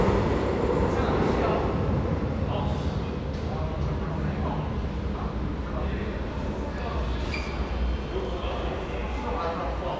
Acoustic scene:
subway station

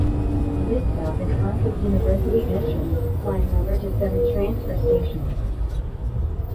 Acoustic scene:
bus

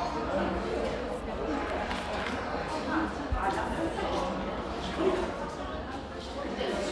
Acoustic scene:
crowded indoor space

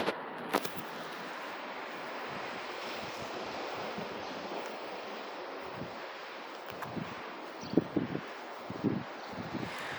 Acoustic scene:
residential area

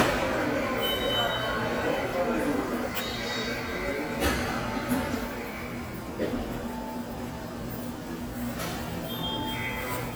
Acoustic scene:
subway station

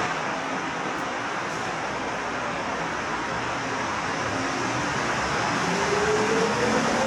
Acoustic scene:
subway station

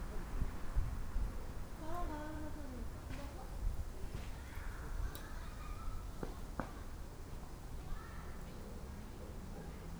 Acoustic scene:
park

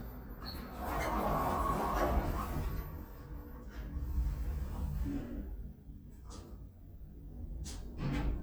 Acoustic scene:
elevator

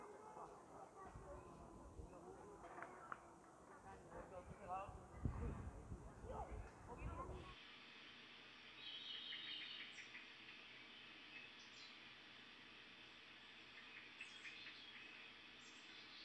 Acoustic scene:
park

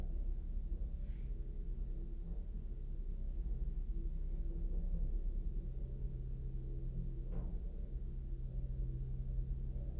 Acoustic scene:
elevator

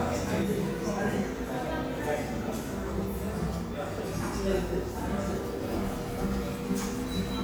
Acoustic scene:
cafe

